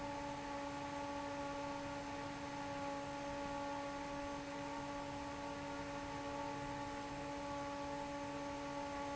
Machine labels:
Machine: fan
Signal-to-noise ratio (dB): 6 dB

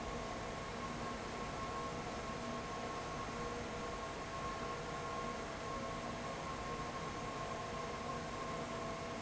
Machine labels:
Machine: fan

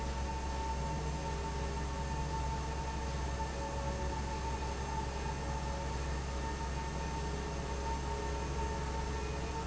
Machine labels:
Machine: fan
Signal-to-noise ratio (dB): -6 dB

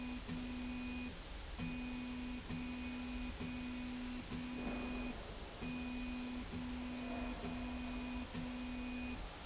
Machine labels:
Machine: slide rail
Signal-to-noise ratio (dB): 6 dB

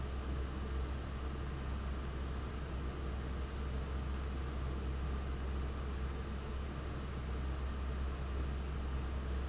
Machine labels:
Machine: fan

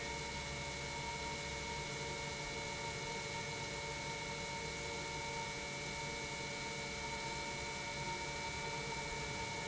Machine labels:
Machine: pump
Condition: normal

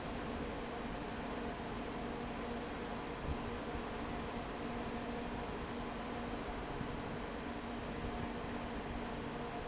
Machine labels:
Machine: fan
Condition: abnormal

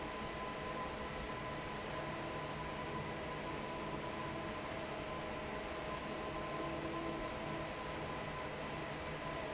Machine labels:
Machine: fan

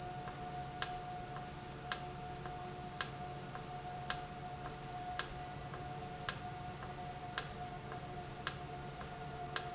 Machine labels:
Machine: valve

